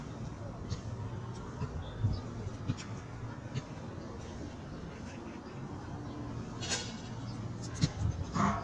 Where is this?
in a park